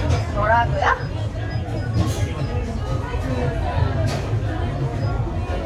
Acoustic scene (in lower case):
restaurant